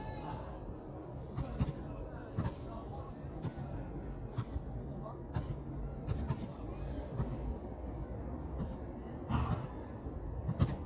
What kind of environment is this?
park